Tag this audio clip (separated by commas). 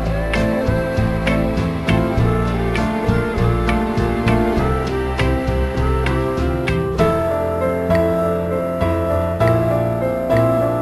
Music